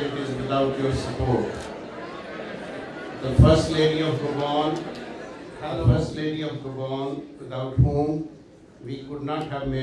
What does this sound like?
A man speaks with slight accent as a crowd in the background makes noise then silences